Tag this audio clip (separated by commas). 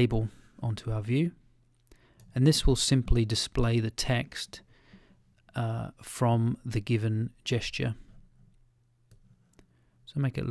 Speech, inside a small room, Clicking